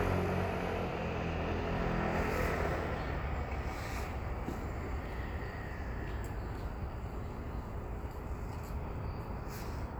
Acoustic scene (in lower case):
street